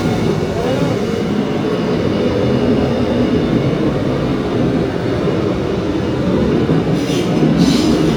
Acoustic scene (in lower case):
subway train